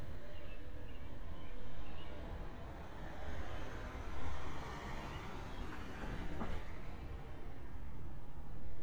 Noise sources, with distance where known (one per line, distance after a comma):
medium-sounding engine